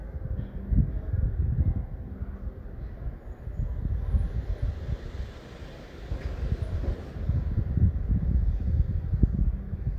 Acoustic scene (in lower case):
residential area